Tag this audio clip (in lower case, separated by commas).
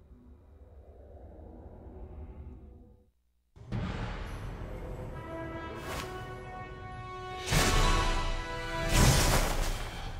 speech, music